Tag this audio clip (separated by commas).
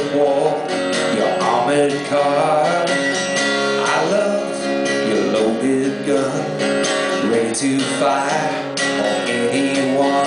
Music, Male singing